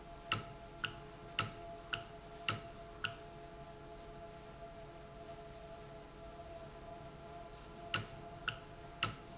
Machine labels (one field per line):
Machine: valve